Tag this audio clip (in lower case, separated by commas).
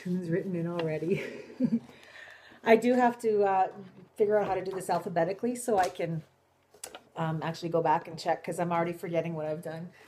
speech